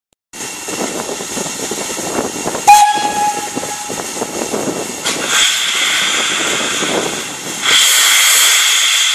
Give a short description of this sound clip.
A steam whistle is blowing and then a hissing sound